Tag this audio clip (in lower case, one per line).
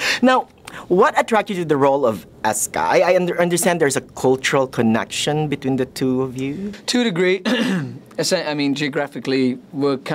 speech